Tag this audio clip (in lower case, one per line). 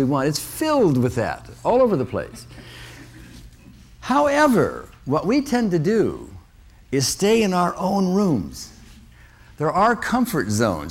speech